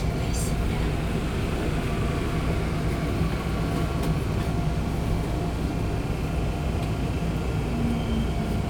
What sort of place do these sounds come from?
subway train